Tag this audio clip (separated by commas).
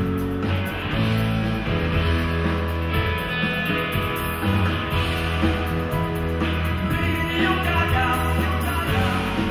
Music